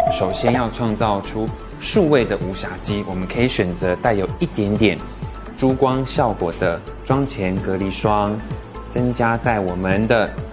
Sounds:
Speech, Music

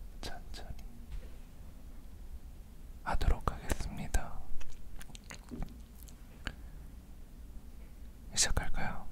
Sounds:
Speech

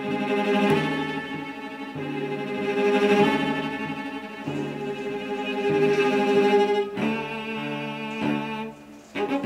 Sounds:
Musical instrument, Cello, playing cello, Music

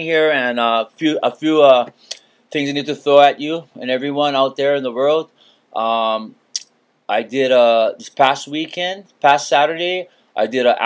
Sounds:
Speech

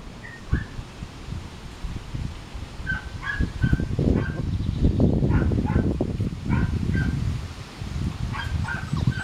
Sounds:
Animal, Dog, Domestic animals

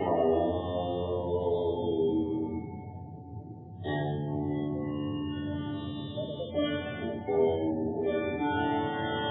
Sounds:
Musical instrument, Music, Sitar

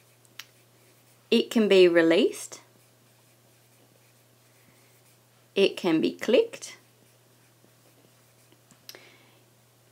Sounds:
Speech

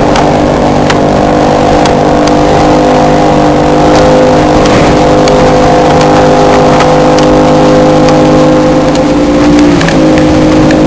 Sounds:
speedboat, Vehicle

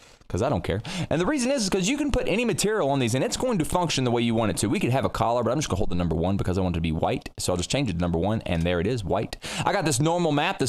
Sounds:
Speech

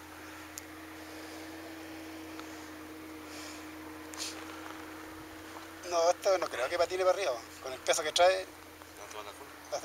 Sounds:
Speech

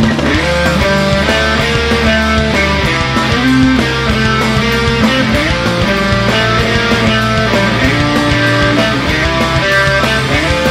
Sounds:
Guitar, Music, Electric guitar, Plucked string instrument, Musical instrument, Strum

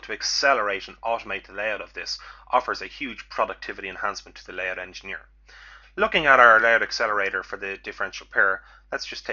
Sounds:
Speech

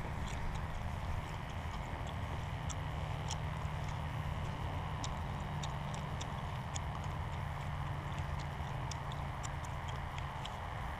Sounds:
outside, rural or natural

